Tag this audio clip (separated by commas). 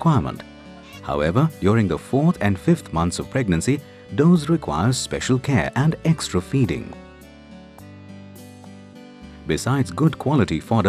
Music, Speech